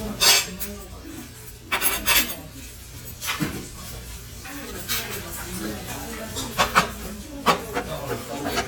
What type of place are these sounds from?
restaurant